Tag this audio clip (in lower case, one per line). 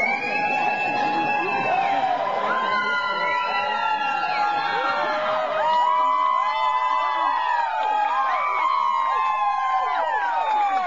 speech